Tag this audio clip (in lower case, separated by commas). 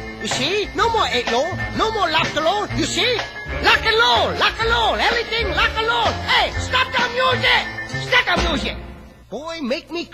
speech, rock and roll, music